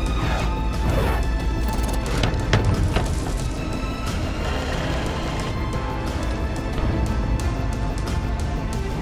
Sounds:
Music

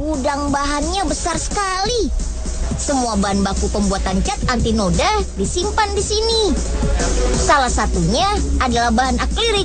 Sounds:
Music, Speech

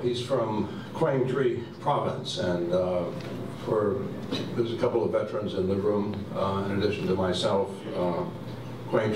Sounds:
monologue, Speech, Male speech

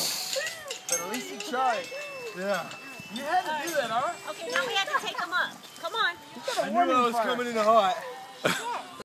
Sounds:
Music, Speech

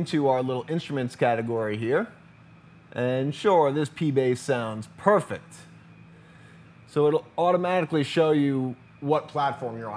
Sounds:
Speech

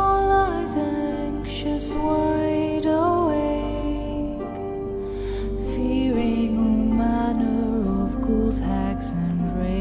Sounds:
Lullaby, Music

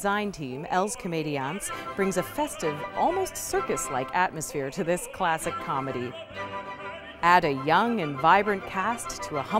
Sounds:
Music, Opera, Speech

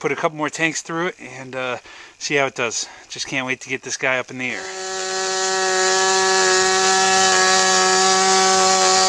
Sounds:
Vehicle, Speech

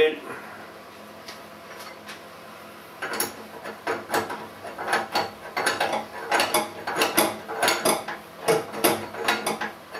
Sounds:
Tools, inside a small room

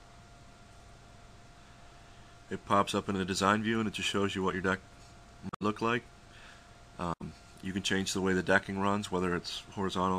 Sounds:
Speech

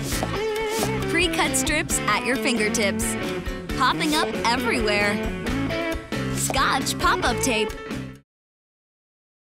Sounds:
Music, Speech, pop

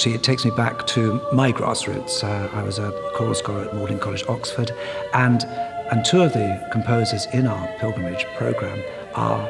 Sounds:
Music, Speech

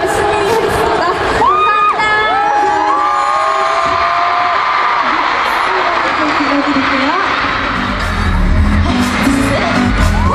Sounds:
Cheering, Crowd

